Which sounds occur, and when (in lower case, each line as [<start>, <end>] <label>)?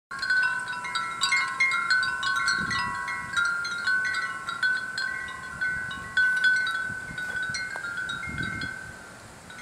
[0.07, 9.61] wind chime
[0.09, 9.61] wind
[2.56, 4.09] wind noise (microphone)
[5.21, 6.44] wind noise (microphone)
[6.75, 7.53] wind noise (microphone)
[7.73, 7.78] tick
[8.22, 8.71] wind noise (microphone)